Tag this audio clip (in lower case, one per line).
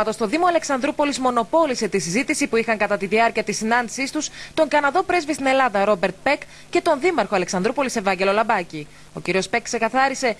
speech